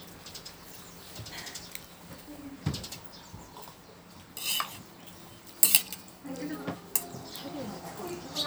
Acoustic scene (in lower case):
restaurant